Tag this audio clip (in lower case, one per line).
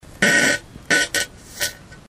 fart